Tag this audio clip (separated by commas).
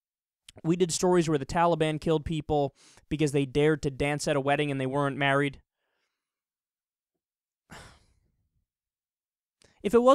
Speech